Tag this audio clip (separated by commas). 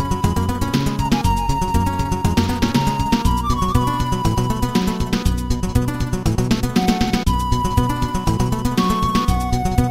Video game music, Music